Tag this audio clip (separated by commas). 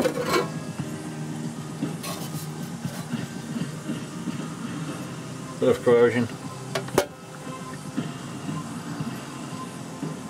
Music, Speech, inside a small room